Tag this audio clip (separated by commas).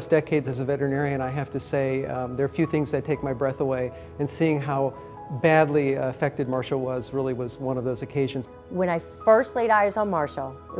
Music, Speech